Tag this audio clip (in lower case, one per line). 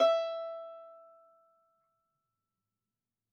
musical instrument
bowed string instrument
music